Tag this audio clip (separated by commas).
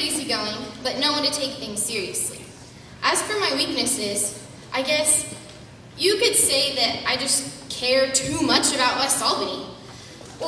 Female speech, Speech, Narration